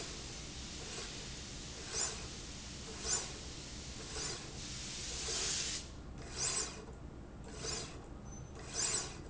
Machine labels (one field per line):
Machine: slide rail